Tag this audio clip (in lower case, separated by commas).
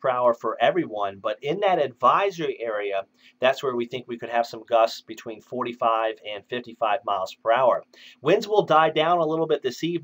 speech